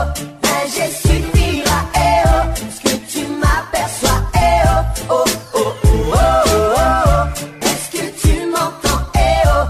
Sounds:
music

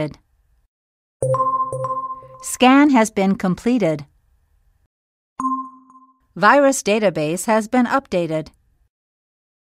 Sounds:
speech

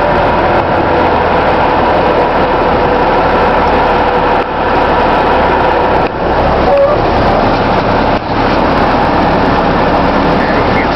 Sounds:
truck
vehicle

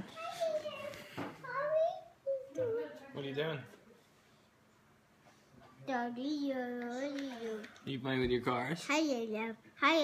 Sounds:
speech

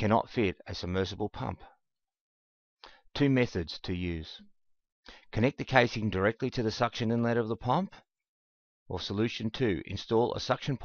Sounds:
speech

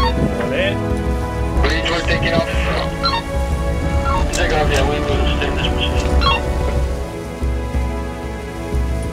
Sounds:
music
speech

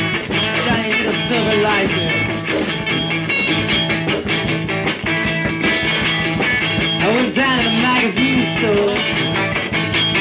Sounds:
music

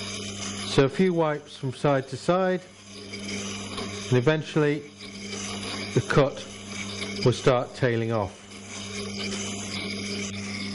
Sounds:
speech
tools

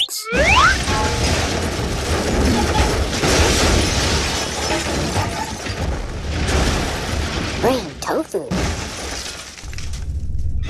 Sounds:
speech

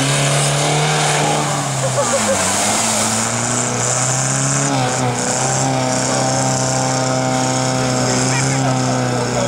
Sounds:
speech

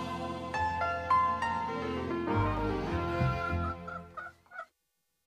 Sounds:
music

